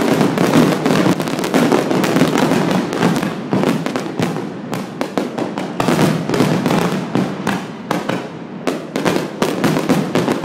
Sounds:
fireworks
fireworks banging

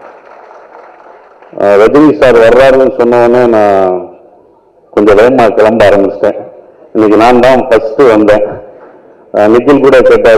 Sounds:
monologue
speech
man speaking

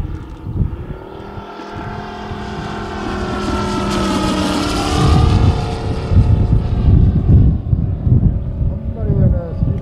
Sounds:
airplane flyby

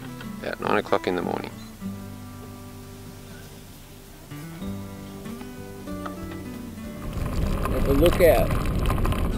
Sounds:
speech
music
vehicle

